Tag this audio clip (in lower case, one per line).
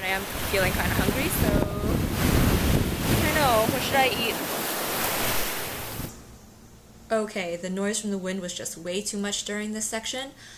speech
outside, rural or natural